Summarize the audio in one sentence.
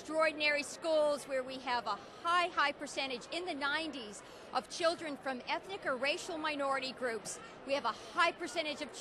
Older woman giving a political speech about schools